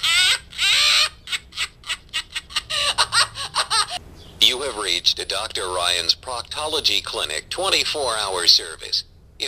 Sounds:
Speech

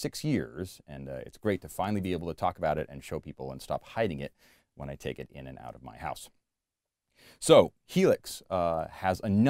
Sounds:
Speech

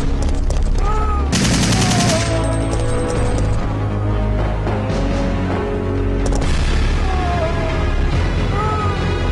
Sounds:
Music

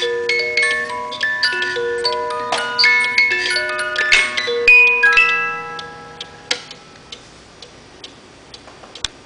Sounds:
Music, Tick

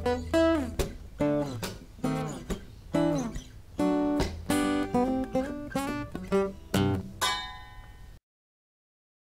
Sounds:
Plucked string instrument, Acoustic guitar, Electric guitar, Guitar, Musical instrument, Music, Strum

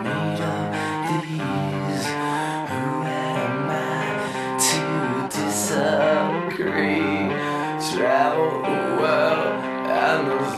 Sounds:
Music

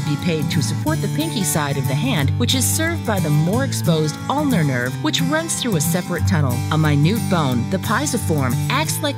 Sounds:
Music, Speech

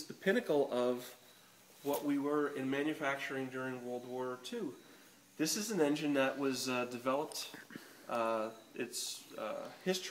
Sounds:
Speech

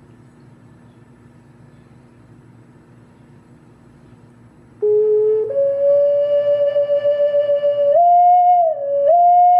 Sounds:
Music

